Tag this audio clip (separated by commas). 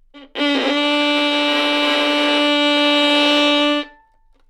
Musical instrument, Music, Bowed string instrument